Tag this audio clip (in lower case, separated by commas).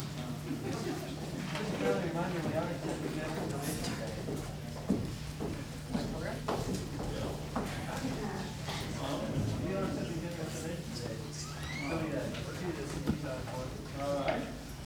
human voice, speech, conversation